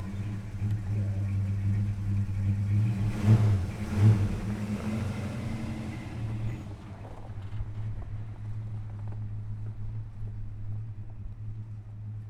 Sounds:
Vehicle, Motor vehicle (road), Truck

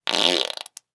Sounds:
Fart

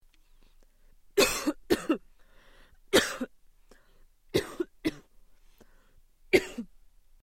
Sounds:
Respiratory sounds, Cough

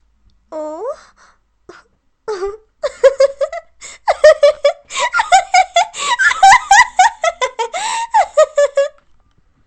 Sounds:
Human voice, Laughter

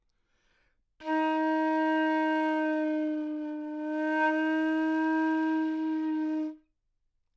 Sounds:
woodwind instrument, Music, Musical instrument

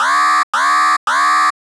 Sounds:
Alarm

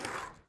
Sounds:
Vehicle, Skateboard

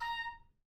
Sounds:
woodwind instrument, Music, Musical instrument

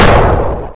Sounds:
Explosion

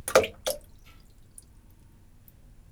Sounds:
Water, Splash, Liquid, Bathtub (filling or washing), home sounds

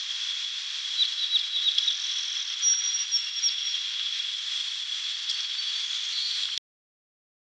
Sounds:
Chirp, Animal, Wild animals, Bird, bird song

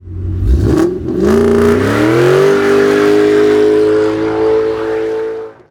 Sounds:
Car, Motor vehicle (road), Vehicle

